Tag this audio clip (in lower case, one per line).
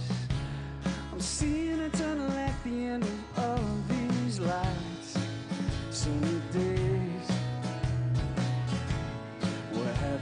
music